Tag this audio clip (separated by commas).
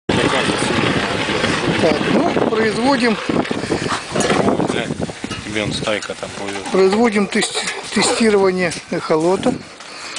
Speech